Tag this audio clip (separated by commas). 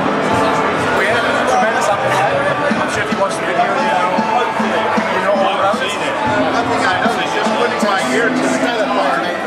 Speech, Strum, Music, Musical instrument, Plucked string instrument, Guitar